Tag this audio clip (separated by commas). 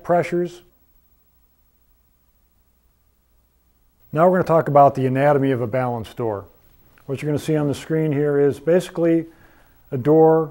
Speech